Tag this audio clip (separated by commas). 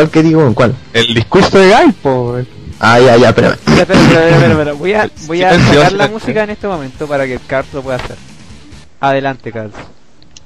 man speaking, Speech